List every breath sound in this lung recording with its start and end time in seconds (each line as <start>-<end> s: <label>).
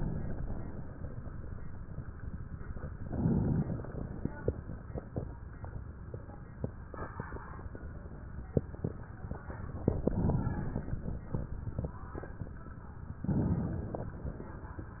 2.93-4.23 s: inhalation
9.68-10.98 s: inhalation
13.20-14.47 s: inhalation